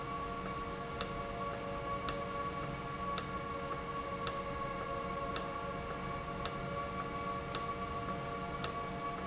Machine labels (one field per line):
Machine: valve